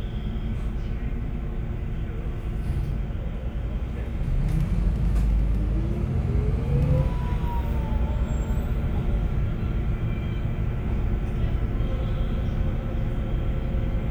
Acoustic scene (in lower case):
bus